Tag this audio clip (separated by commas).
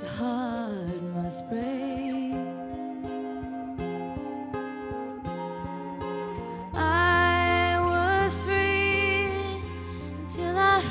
Music